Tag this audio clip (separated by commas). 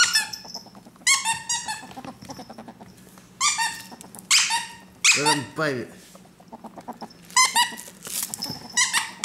ferret dooking